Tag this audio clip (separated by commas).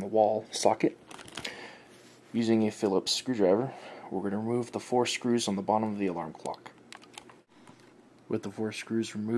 Speech